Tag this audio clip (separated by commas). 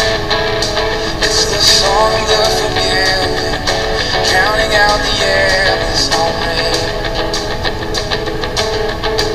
Blues, Gospel music, Music